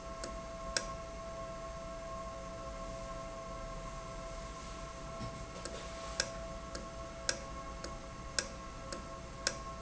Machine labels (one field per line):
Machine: valve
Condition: normal